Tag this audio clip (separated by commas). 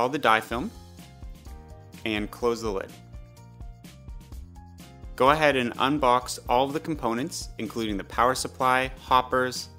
Speech, Music